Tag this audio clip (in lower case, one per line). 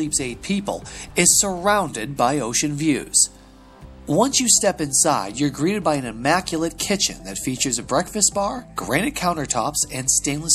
speech
music